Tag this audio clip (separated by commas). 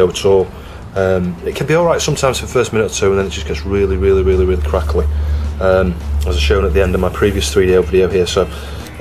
Music, Speech